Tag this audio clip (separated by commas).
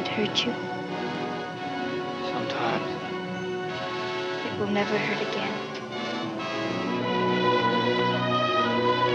Speech, Music